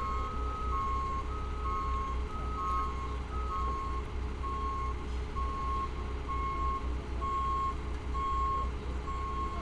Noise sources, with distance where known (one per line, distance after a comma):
large-sounding engine
reverse beeper